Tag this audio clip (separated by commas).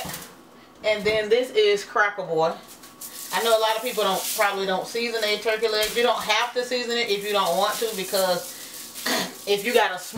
Speech